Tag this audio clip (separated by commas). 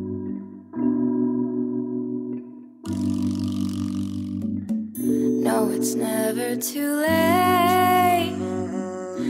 Music